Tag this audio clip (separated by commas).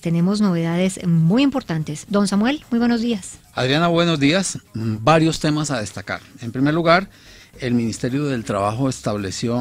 Speech